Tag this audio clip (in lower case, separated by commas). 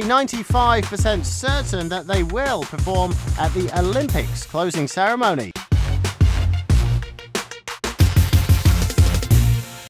music, speech